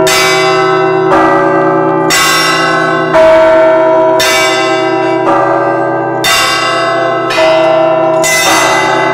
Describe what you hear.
Bells ringing, possibly church bells